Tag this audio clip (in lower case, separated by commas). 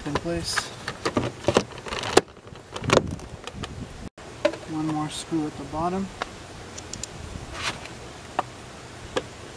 opening or closing car doors